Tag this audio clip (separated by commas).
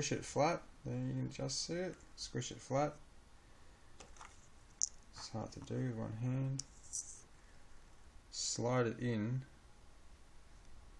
Speech